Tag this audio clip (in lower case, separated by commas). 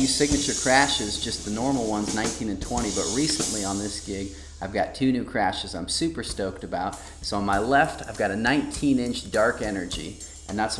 drum kit, musical instrument, cymbal, drum, snare drum, hi-hat, speech, music